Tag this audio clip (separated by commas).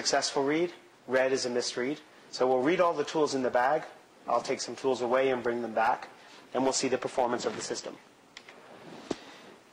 inside a small room, Speech